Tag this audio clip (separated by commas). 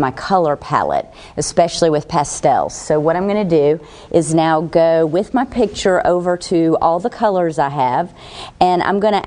Speech